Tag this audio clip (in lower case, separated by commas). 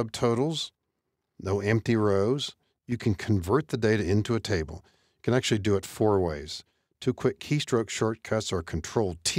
speech